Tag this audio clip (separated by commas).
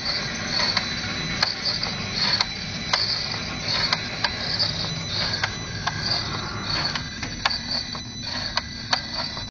Engine, Vehicle